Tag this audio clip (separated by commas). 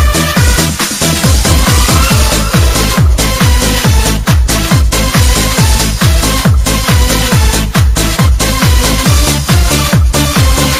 Techno, Electronic music, Music